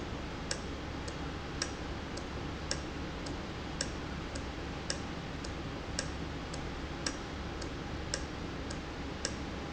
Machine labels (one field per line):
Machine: valve